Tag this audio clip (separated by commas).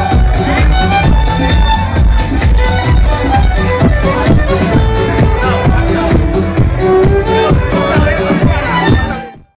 Speech, Musical instrument, Music, Violin